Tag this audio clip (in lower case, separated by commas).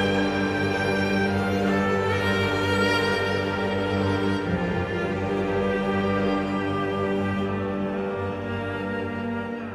soundtrack music, music